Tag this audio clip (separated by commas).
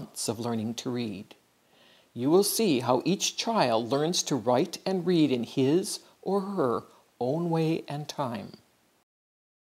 Speech